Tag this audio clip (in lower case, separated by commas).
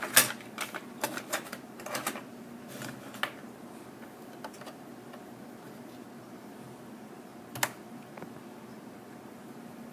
inside a small room